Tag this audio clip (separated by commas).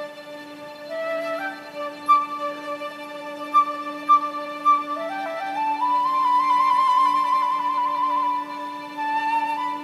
Musical instrument, Music